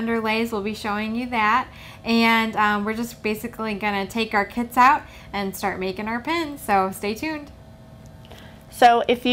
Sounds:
Speech

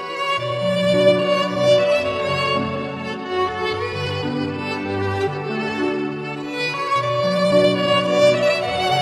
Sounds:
Musical instrument, Music, fiddle

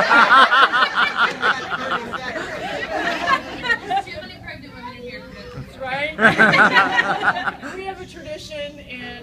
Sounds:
monologue, Speech, Female speech, Conversation

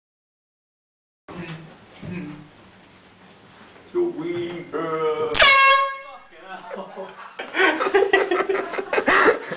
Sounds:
Speech, inside a small room

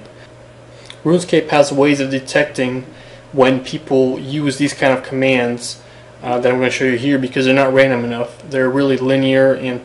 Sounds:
Speech

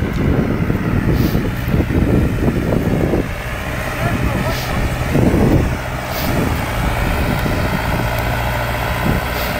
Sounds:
Speech

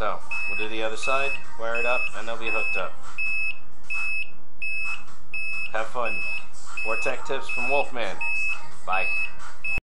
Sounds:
Speech, Buzzer, Music

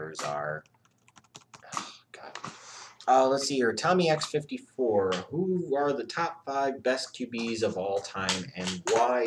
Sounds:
Computer keyboard, Typing

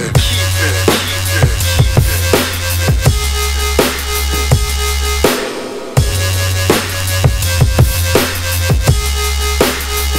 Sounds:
Snare drum, Bass drum, Drum kit, Hi-hat, Cymbal, Music

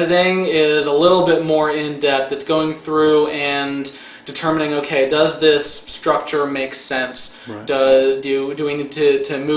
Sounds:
Speech

